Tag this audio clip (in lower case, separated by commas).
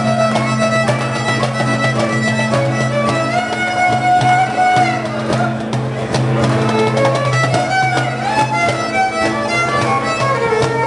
music, musical instrument, fiddle, violin